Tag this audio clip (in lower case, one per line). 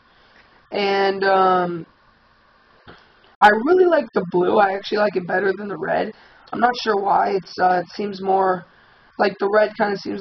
speech